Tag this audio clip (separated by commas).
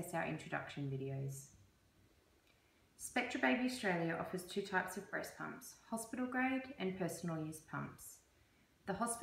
Speech